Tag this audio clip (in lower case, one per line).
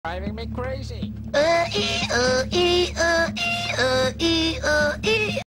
speech
music
honk